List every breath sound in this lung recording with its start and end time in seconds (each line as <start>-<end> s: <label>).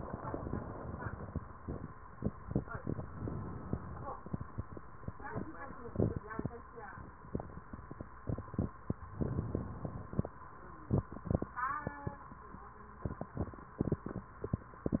3.01-4.14 s: inhalation
9.19-10.32 s: inhalation